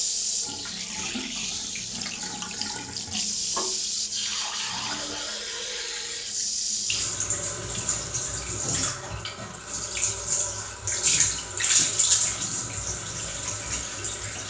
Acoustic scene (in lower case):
restroom